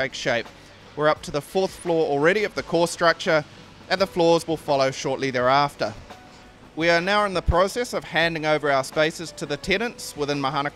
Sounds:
speech
music

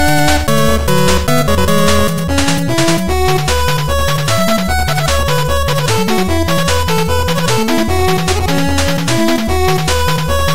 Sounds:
music

